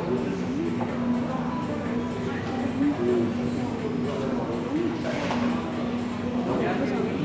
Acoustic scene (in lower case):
cafe